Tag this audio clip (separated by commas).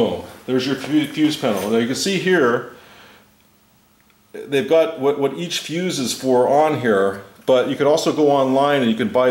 inside a small room, Speech